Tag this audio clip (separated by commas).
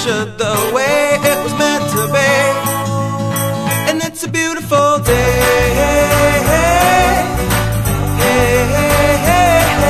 Music